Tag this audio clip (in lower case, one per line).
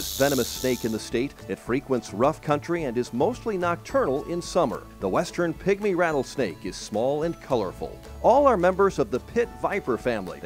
snake